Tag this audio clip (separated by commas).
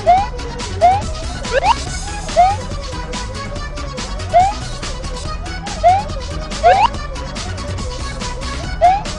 Music